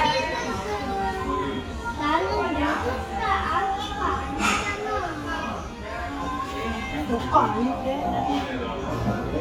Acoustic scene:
restaurant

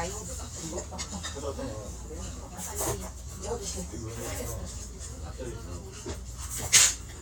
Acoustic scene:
restaurant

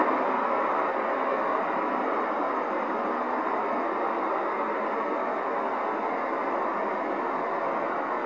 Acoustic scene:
street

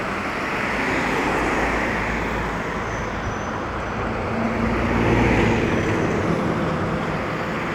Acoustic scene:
street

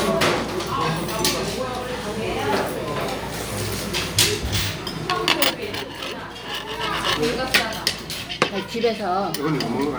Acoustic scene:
restaurant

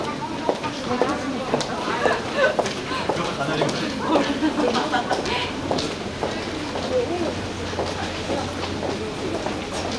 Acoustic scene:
subway station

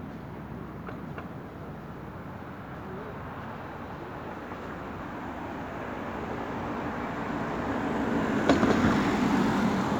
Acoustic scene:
street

